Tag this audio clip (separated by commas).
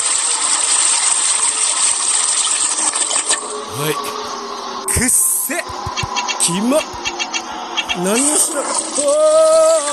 Speech